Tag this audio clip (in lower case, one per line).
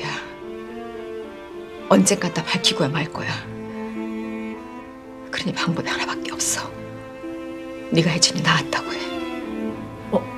double bass
string section
cello